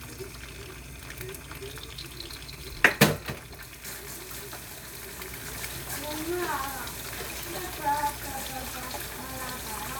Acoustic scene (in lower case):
kitchen